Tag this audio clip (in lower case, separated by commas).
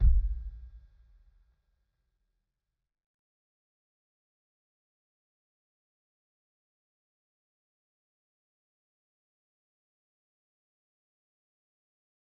percussion, drum, musical instrument, music, bass drum